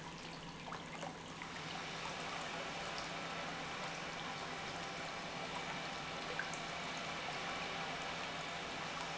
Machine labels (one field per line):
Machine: pump